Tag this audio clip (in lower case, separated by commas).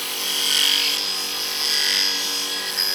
tools